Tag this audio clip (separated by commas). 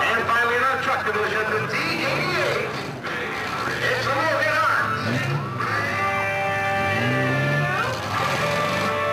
Speech, Truck, Vehicle, Music